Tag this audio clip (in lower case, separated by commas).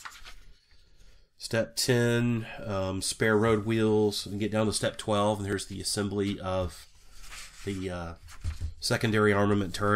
inside a small room, speech